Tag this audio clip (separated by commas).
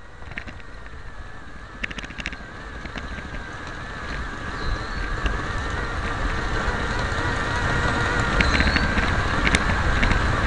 Vehicle